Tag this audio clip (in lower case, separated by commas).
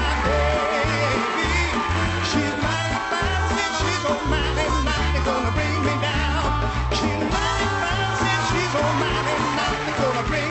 music, swing music